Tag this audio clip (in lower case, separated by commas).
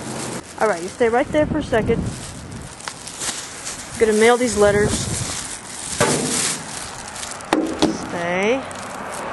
walk, speech